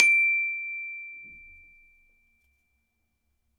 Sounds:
Mallet percussion, Musical instrument, Percussion, Music, Glockenspiel

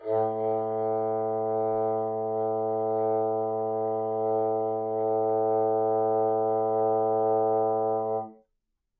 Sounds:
Wind instrument, Music, Musical instrument

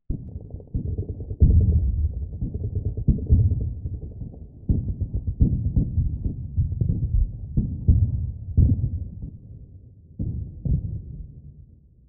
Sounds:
Explosion, gunfire

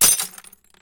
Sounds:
Shatter, Glass, Crushing

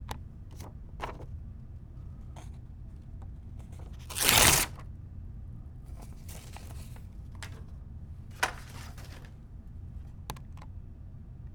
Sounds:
Tearing

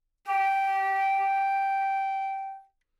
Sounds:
Musical instrument, Wind instrument, Music

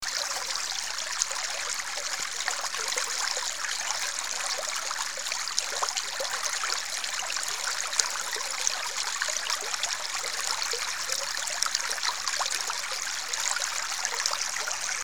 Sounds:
Water, Stream

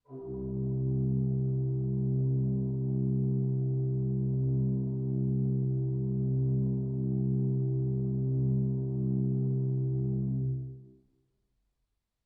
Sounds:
Musical instrument, Keyboard (musical), Music, Organ

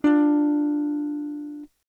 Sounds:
Music, Plucked string instrument, Guitar, Musical instrument, Electric guitar, Strum

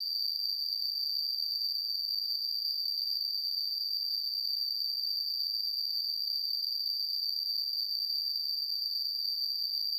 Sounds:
Animal, Wild animals, Insect, Cricket

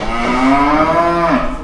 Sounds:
Animal, livestock

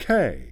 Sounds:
Human voice, Speech, Male speech

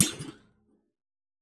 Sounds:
thud

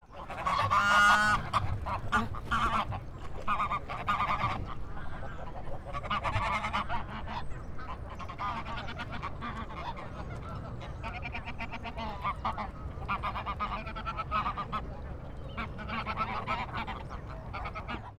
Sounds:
Wild animals, Bird, livestock, Fowl, Animal

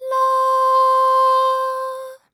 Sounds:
Human voice, Female singing, Singing

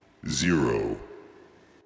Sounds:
Human voice, Speech, man speaking

